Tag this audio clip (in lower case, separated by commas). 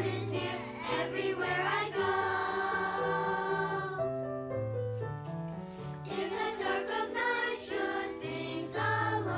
singing, choir, music, piano